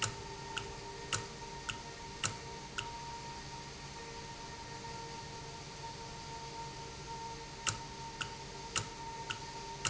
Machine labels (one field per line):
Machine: valve